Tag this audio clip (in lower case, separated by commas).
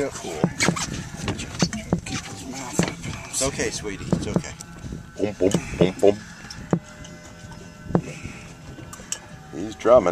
music, speech